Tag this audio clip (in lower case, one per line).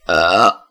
eructation